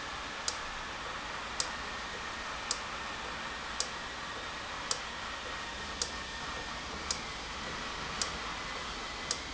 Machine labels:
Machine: valve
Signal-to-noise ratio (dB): -6 dB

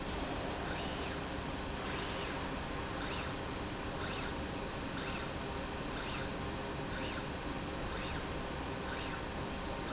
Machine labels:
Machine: slide rail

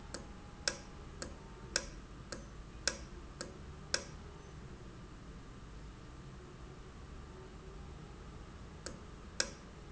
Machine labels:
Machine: valve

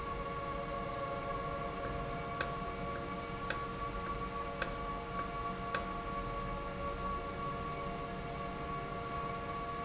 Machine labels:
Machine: valve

